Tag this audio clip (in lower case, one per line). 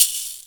rattle (instrument)
percussion
musical instrument
music